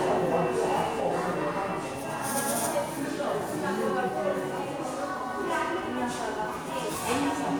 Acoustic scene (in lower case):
crowded indoor space